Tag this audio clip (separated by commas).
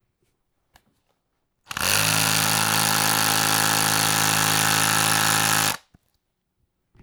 Tools